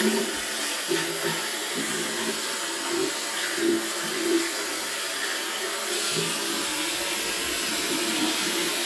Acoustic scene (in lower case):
restroom